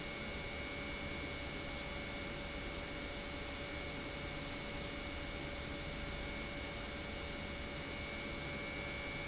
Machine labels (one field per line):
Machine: pump